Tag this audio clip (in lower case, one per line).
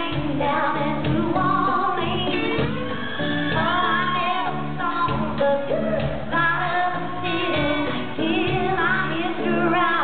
music
female singing